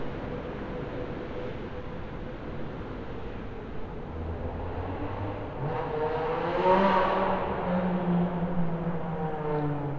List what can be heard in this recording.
medium-sounding engine